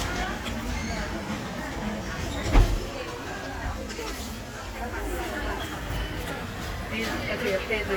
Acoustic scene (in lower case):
crowded indoor space